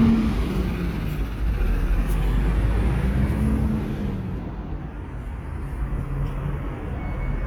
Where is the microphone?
in a residential area